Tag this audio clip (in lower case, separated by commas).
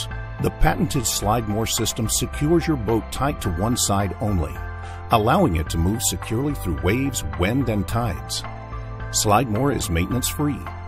music, speech